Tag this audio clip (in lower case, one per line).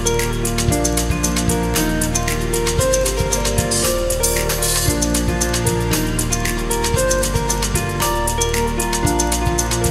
music